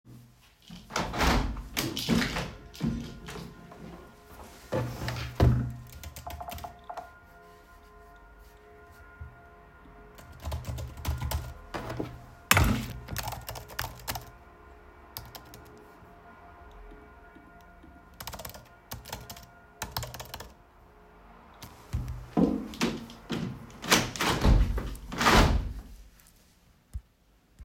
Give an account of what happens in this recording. I opened the widnow and in the background the church rang the bell. I then started typing on my laptop and shuffled things on my desk. After a bit I had stopped and closed the window back.